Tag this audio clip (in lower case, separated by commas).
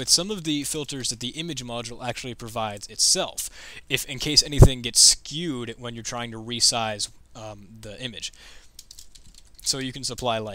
speech, typing, computer keyboard